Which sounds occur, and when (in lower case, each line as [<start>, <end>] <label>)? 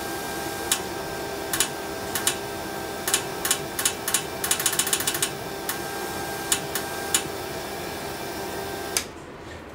[0.00, 9.74] mechanisms
[0.69, 0.75] tick
[1.48, 1.67] generic impact sounds
[2.11, 2.34] generic impact sounds
[3.04, 3.27] generic impact sounds
[3.44, 3.61] generic impact sounds
[3.73, 3.91] generic impact sounds
[4.04, 4.28] generic impact sounds
[4.43, 5.36] generic impact sounds
[5.65, 5.72] tick
[6.51, 6.55] tick
[6.73, 6.81] tick
[7.11, 7.19] tick
[8.96, 9.04] tick
[9.42, 9.71] breathing